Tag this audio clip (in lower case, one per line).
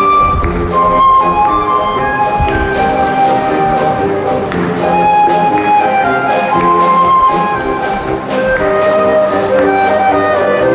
music
orchestra
brass instrument